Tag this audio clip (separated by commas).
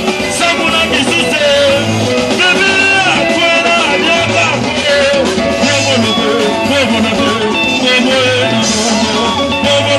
Dance music, Exciting music, Music